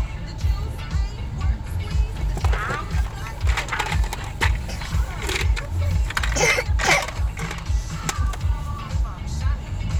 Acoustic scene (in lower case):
car